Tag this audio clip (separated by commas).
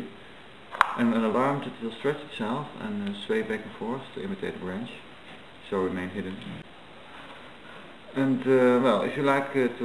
Speech